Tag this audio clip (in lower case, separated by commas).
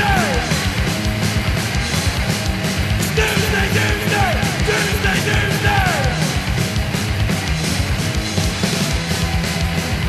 hip hop music, music, song, punk rock, progressive rock, heavy metal